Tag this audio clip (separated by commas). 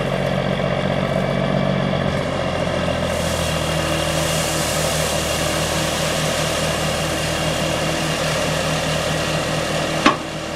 Vehicle, outside, urban or man-made, Truck